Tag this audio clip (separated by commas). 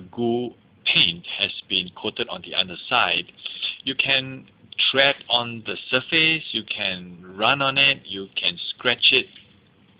Speech